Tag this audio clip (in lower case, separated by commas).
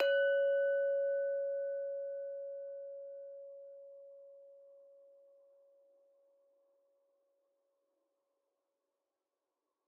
glass, clink